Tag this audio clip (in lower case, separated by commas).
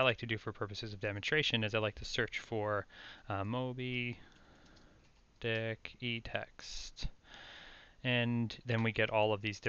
speech